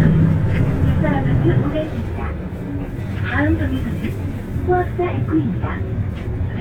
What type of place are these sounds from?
bus